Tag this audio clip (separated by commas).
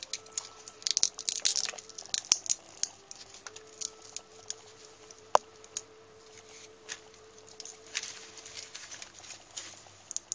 Music